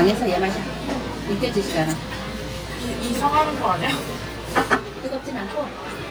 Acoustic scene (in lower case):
restaurant